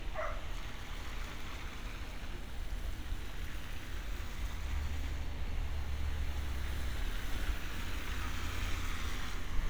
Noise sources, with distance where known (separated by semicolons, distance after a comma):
engine of unclear size; dog barking or whining